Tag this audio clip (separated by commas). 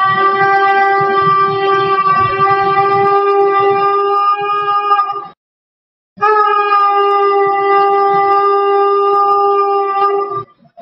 playing shofar